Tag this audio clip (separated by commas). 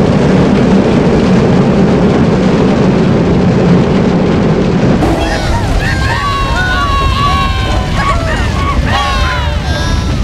roller coaster running